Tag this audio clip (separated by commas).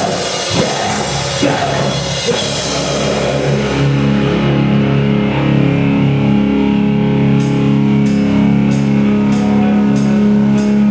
Musical instrument, Drum, Guitar, Drum kit, Music